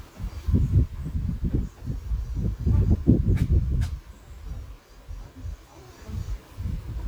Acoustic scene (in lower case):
park